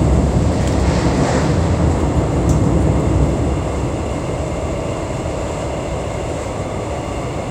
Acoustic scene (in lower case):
subway train